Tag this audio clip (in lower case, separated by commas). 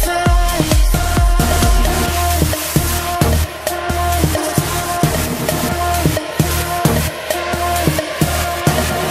music, sound effect